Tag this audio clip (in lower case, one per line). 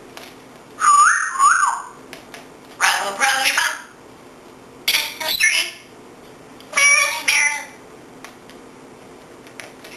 speech